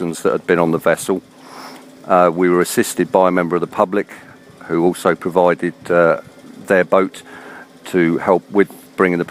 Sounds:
speech

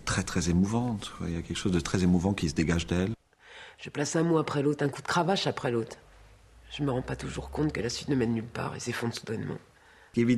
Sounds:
speech

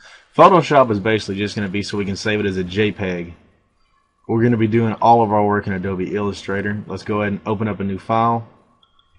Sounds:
speech

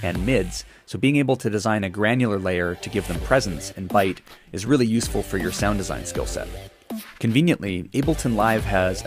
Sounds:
music, speech

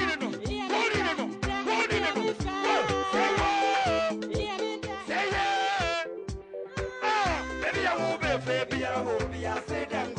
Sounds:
music, traditional music

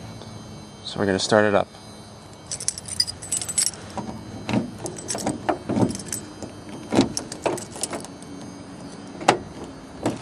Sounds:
speech

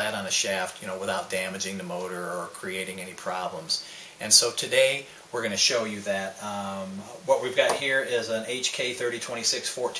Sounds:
speech

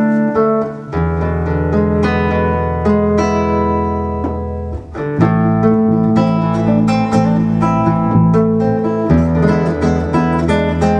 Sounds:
guitar, plucked string instrument, strum, music, musical instrument

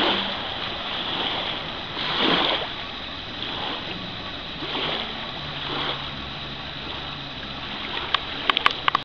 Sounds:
water vehicle, vehicle

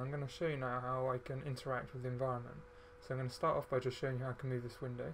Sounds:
speech

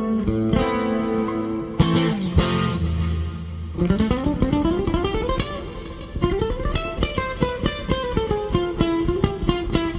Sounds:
guitar, plucked string instrument, musical instrument, music, acoustic guitar, bass guitar

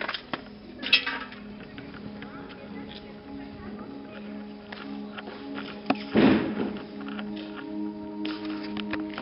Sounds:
music, inside a large room or hall, speech

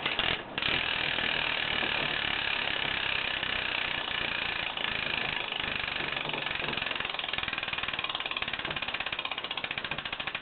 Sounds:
vehicle, bicycle

